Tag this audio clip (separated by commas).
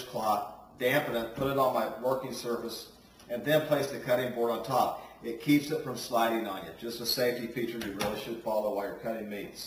Speech